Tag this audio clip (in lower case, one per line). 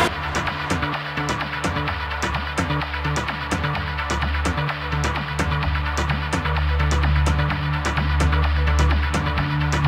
music